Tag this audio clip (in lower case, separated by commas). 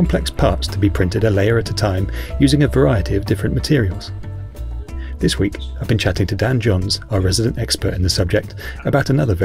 music, speech